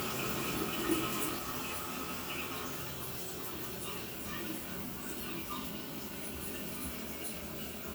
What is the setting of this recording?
restroom